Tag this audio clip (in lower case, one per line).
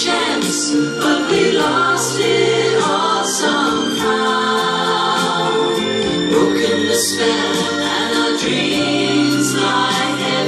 music
gospel music